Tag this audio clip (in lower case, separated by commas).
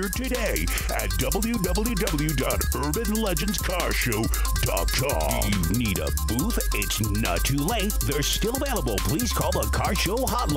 music, speech